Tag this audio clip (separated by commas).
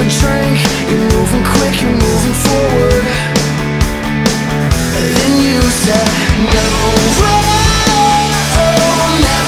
Music